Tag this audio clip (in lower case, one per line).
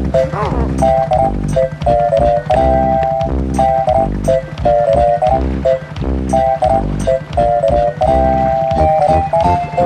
music
motorboat
boat
vehicle